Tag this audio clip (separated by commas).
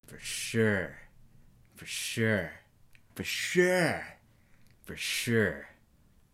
Speech, Human voice, man speaking